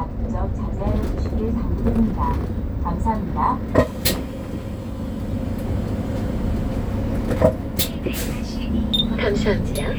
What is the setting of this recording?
bus